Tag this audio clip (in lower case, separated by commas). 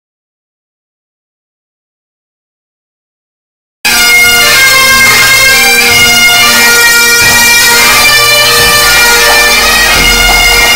music, bagpipes